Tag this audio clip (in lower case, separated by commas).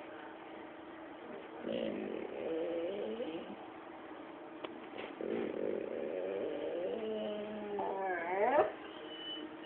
pets, dog, whimper (dog), animal